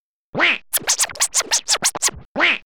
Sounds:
scratching (performance technique), musical instrument, music

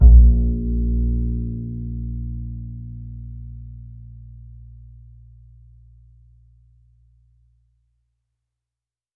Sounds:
musical instrument, music, bowed string instrument

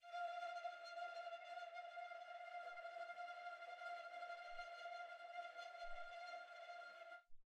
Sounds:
musical instrument, bowed string instrument, music

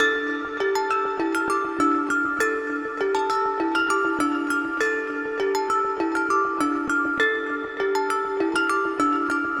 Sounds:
musical instrument, percussion, music, mallet percussion

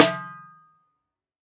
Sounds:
drum, musical instrument, percussion, music, snare drum

